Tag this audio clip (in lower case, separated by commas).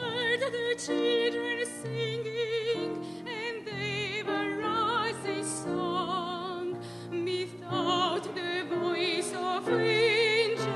music